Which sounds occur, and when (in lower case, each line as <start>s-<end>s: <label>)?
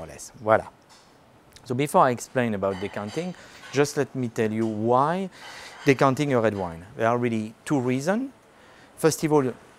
0.0s-0.7s: male speech
0.0s-9.7s: mechanisms
0.7s-0.8s: tick
0.8s-1.1s: cutlery
1.5s-1.6s: human sounds
1.6s-3.3s: male speech
2.6s-3.3s: cutlery
3.3s-3.7s: breathing
3.6s-3.8s: cutlery
3.7s-5.3s: male speech
4.6s-4.8s: cutlery
5.3s-6.0s: cutlery
5.3s-5.8s: breathing
5.8s-8.3s: male speech
6.4s-6.7s: cutlery
8.3s-8.9s: breathing
8.4s-8.5s: tick
9.0s-9.6s: male speech